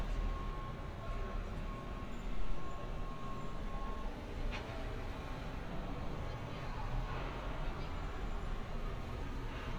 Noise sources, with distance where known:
background noise

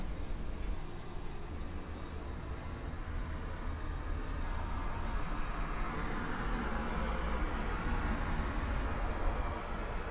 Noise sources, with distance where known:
medium-sounding engine

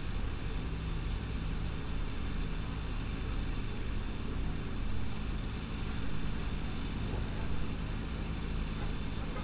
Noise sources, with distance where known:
car horn

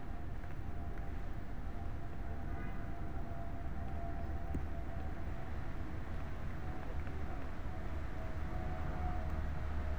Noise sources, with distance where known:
background noise

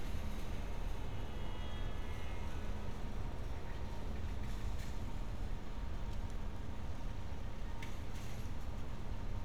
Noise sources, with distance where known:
car horn, far

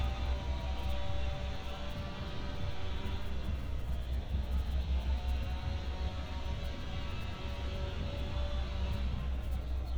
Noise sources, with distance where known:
unidentified powered saw, far

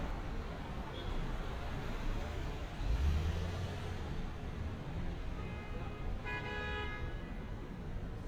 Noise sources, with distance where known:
medium-sounding engine; car horn

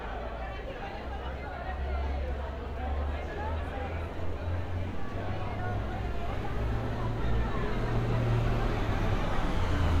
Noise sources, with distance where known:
engine of unclear size, far; unidentified human voice, near

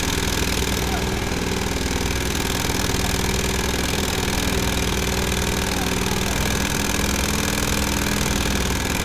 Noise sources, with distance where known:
unidentified impact machinery, near

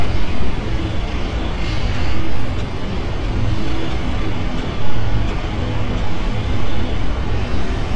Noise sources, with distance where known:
jackhammer

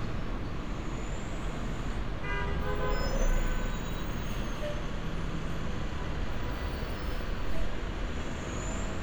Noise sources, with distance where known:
large-sounding engine, near; car horn, far

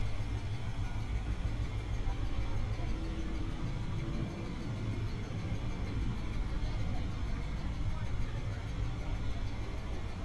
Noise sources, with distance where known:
engine of unclear size, near; person or small group talking, far

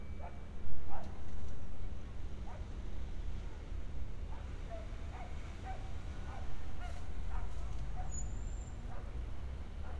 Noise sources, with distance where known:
dog barking or whining

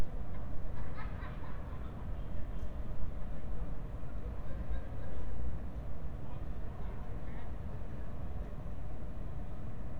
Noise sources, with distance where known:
background noise

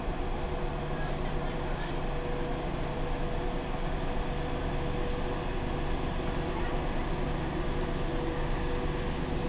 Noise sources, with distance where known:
large-sounding engine, near

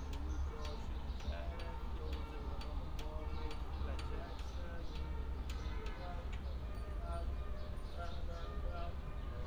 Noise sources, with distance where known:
music from an unclear source

